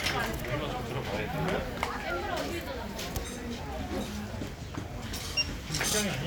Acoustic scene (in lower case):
crowded indoor space